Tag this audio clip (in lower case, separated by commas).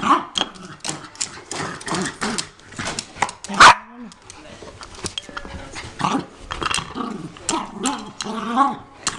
inside a small room, growling